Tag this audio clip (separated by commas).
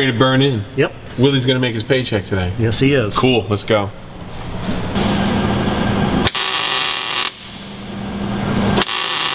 Tools, Speech